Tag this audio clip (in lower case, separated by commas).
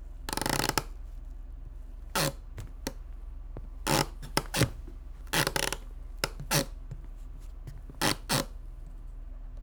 squeak, wood